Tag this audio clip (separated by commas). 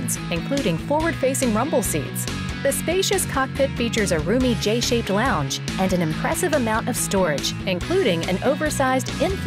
Speech, Music